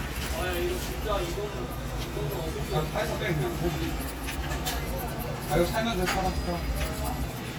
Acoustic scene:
crowded indoor space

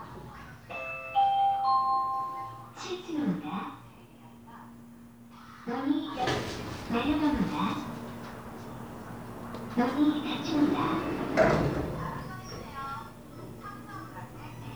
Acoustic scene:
elevator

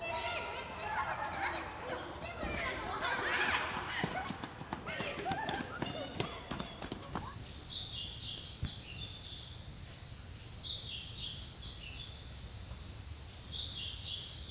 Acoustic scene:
park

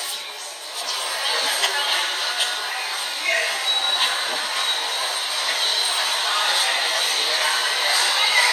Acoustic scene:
subway station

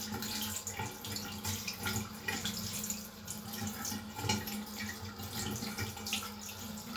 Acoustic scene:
restroom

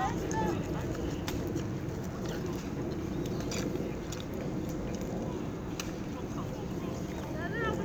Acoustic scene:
park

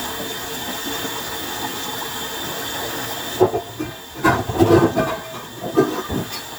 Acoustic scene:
kitchen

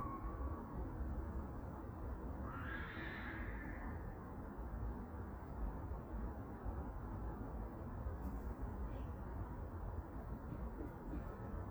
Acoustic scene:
park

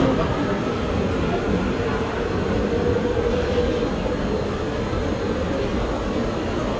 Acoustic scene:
subway station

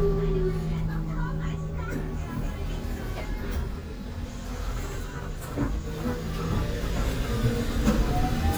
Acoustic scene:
bus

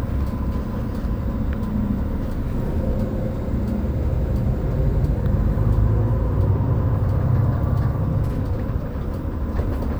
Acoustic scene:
bus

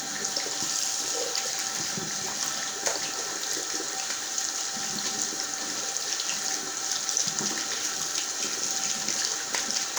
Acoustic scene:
restroom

